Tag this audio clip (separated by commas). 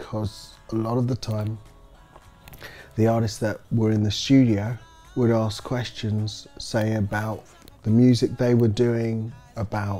Speech, Music